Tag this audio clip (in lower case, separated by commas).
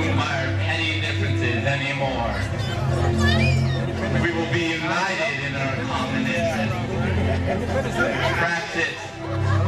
man speaking, speech, monologue, music